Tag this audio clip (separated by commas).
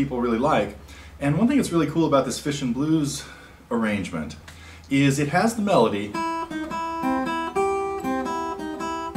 Music, Speech, Musical instrument, Guitar, Strum, Plucked string instrument